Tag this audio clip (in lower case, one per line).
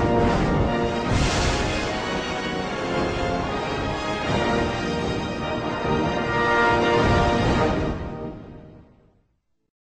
music